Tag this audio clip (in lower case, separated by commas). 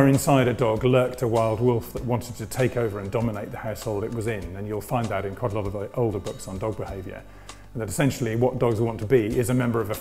music, speech